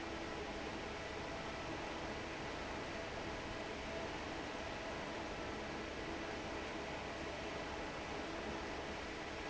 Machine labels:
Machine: fan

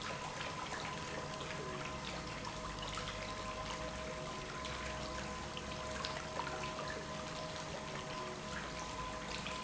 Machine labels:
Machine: pump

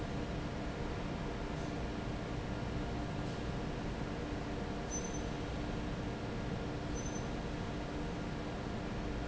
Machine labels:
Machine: fan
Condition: normal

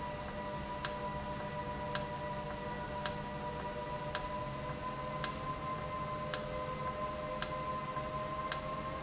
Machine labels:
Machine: valve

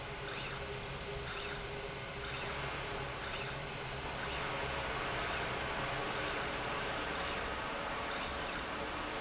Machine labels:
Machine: slide rail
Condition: normal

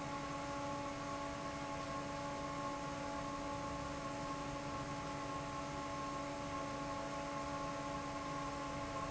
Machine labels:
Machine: fan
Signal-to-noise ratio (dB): 0 dB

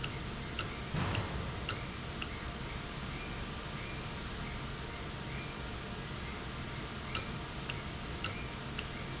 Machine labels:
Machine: valve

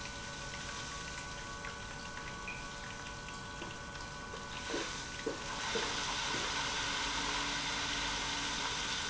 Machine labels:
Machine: pump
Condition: abnormal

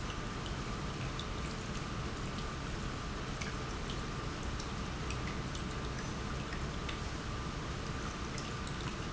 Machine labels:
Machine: pump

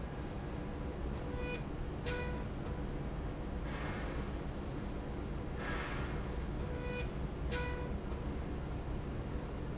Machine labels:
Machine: slide rail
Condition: normal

